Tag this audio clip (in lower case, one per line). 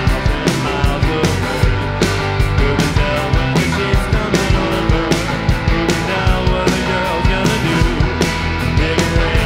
music